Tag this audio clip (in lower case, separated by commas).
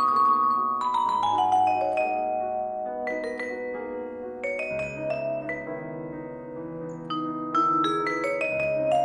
xylophone, marimba, mallet percussion, glockenspiel